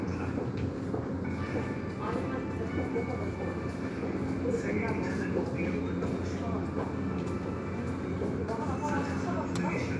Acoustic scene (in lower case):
subway station